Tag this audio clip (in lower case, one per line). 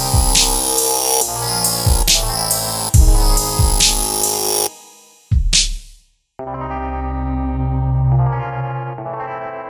dubstep
electronic music
music